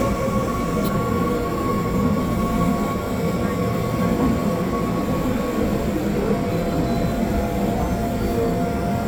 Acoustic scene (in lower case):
subway train